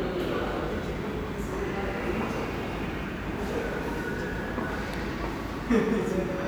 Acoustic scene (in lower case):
crowded indoor space